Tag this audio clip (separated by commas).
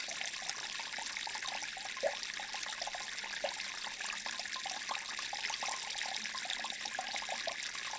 Stream, Water